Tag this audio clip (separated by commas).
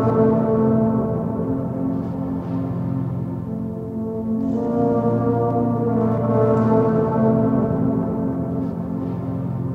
Music